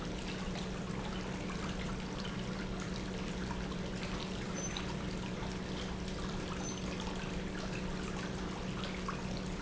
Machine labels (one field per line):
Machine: pump